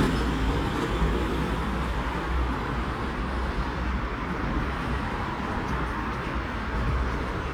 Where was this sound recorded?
on a street